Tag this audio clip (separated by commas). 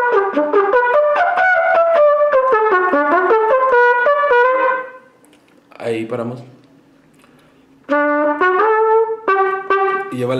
playing trumpet